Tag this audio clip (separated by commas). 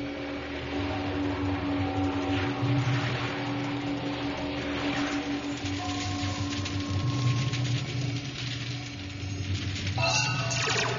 skiing